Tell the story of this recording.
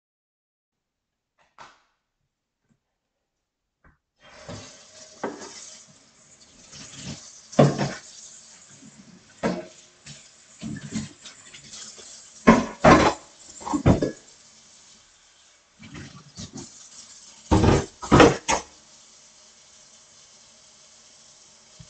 I turned on the light, then turned on the water and washed some dishes.